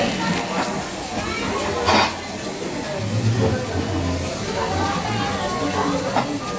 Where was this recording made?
in a restaurant